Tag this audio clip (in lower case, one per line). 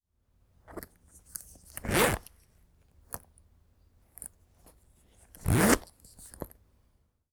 domestic sounds
zipper (clothing)